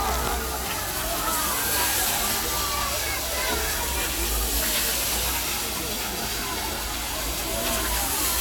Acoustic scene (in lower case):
park